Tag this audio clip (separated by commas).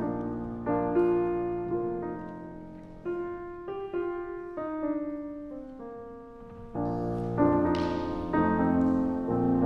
Music, Soul music